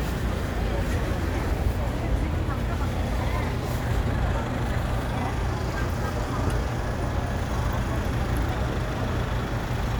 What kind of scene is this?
residential area